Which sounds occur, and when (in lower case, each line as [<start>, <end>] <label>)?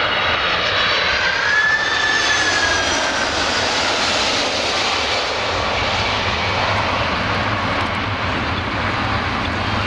[0.00, 9.85] aircraft
[0.00, 9.85] wind